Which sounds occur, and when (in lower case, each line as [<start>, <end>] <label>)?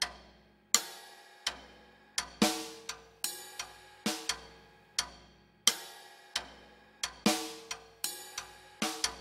[0.00, 0.10] tick
[0.00, 9.20] music
[0.00, 9.20] video game sound
[0.69, 0.79] tick
[1.40, 1.53] tick
[2.10, 2.28] tick
[2.83, 2.98] tick
[3.52, 3.65] tick
[4.25, 4.33] tick
[4.91, 5.03] tick
[5.61, 5.74] tick
[6.29, 6.40] tick
[6.96, 7.09] tick
[7.63, 7.77] tick
[8.32, 8.47] tick
[8.97, 9.10] tick